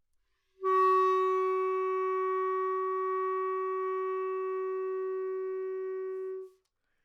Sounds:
Musical instrument, Music, Wind instrument

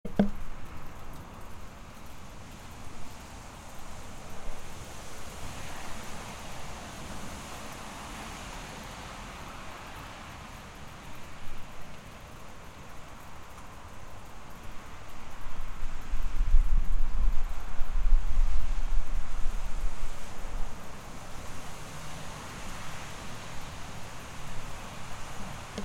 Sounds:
Water, Rain

